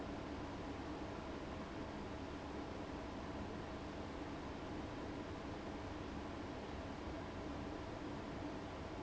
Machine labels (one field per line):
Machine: fan